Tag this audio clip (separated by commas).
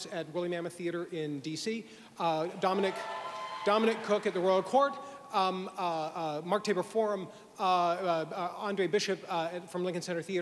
Speech, Male speech